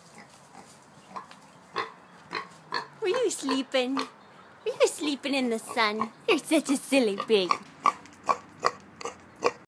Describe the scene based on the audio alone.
Mid frequency oink sounds, followed by a female talking